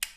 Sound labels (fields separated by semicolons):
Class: switch; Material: plastic